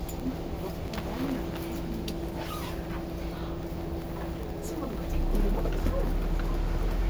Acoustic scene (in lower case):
bus